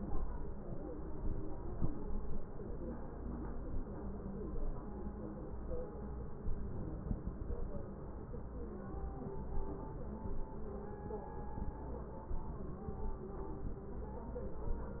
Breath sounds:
6.46-7.64 s: inhalation

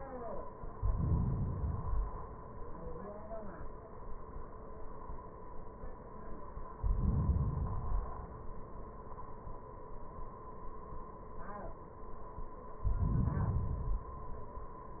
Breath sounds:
0.62-1.61 s: inhalation
1.61-2.60 s: exhalation
6.77-7.68 s: inhalation
7.70-8.61 s: exhalation
12.78-13.70 s: inhalation
13.69-14.61 s: exhalation

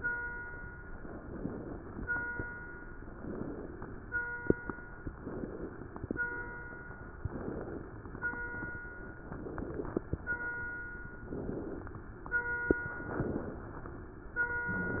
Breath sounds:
1.02-1.99 s: inhalation
3.15-4.12 s: inhalation
5.20-6.17 s: inhalation
7.19-8.16 s: inhalation
9.32-10.38 s: inhalation
11.27-12.03 s: inhalation
12.96-13.78 s: inhalation

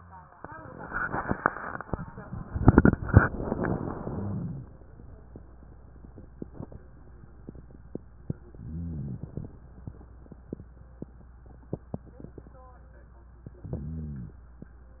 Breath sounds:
3.27-4.68 s: exhalation
8.53-9.54 s: exhalation
13.41-14.41 s: exhalation

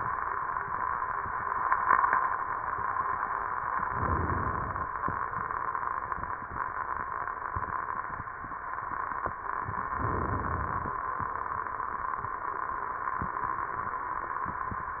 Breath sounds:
3.80-4.87 s: inhalation
9.90-10.96 s: inhalation

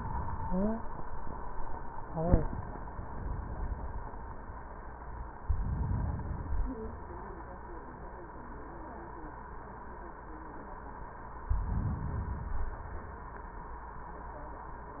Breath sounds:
5.33-6.83 s: inhalation
11.43-12.49 s: inhalation
12.45-13.70 s: exhalation

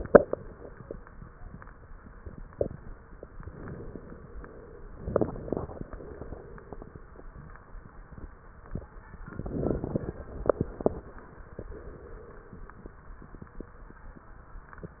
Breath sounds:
4.92-5.83 s: inhalation
4.92-5.83 s: crackles
5.96-6.96 s: exhalation
9.26-10.17 s: inhalation
9.26-10.17 s: crackles
10.25-11.16 s: exhalation
10.25-11.16 s: crackles

